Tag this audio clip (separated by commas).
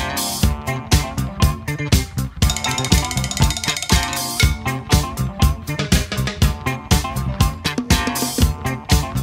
Music, Funk